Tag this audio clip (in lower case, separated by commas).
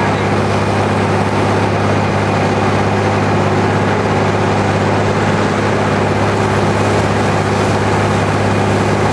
pump (liquid)